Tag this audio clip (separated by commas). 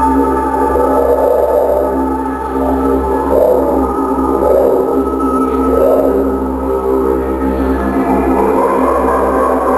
Music